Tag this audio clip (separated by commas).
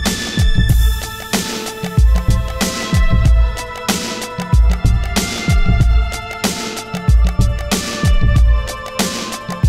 Music